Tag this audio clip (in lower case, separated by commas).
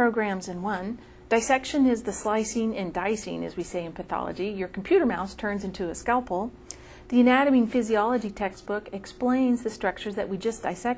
speech